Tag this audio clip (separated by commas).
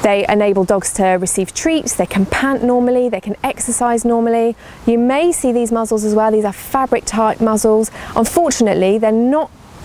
Speech